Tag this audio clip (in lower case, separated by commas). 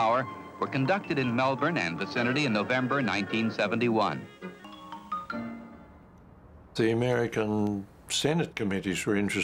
music, speech